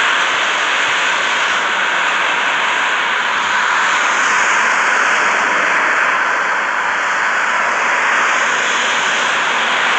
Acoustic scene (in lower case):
street